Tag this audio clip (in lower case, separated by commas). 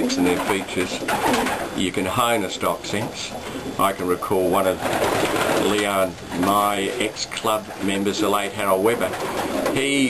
dove, speech, inside a small room